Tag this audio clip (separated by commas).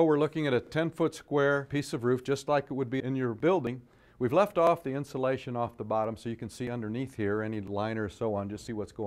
Speech